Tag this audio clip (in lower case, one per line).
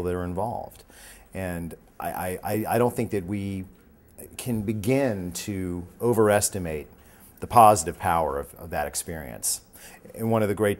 speech